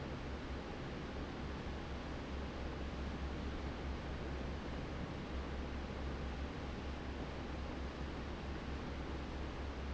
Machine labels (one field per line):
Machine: fan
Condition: normal